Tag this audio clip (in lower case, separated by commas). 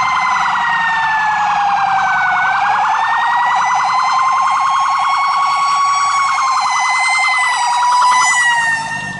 police car (siren), emergency vehicle, siren